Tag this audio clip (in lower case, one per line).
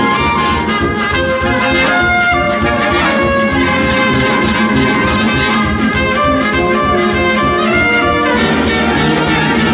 brass instrument